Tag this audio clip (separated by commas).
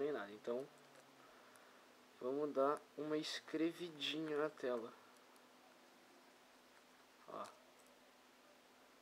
Speech